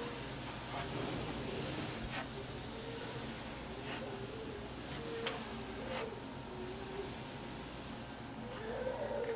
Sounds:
inside a small room, Snake, Animal

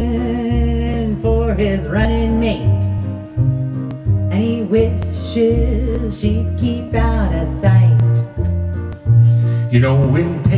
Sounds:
Music

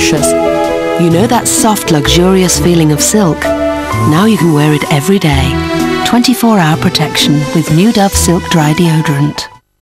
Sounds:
Music, Speech

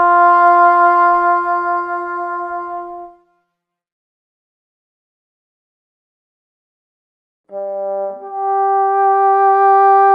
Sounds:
Musical instrument, Music

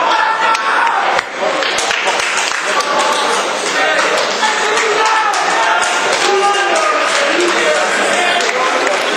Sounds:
Speech, Slam

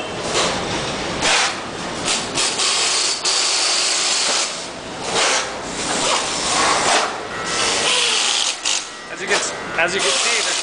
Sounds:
inside a large room or hall, Speech

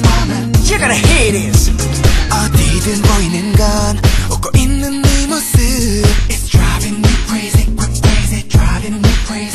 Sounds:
Music

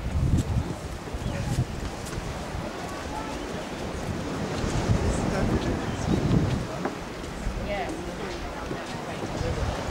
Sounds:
penguins braying

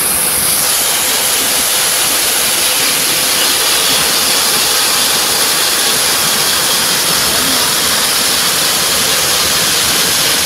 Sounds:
outside, rural or natural

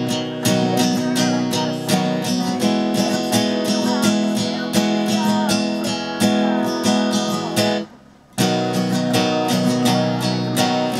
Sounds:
Strum, Plucked string instrument, Music, Guitar, Acoustic guitar, Musical instrument

